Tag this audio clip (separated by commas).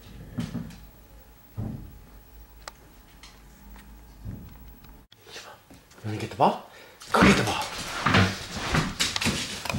Speech